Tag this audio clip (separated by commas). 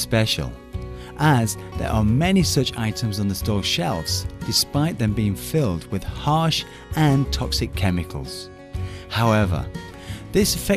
Music, Speech